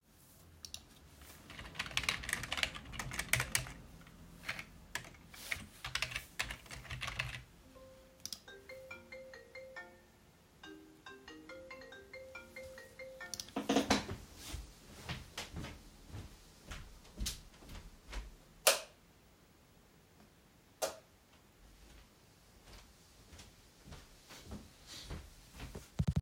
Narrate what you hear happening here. I was sitting at my desk typing on the keyboard when my phone started ringing. I got up and walked to the light switch turning it on and then immediately off again before returning to my desk.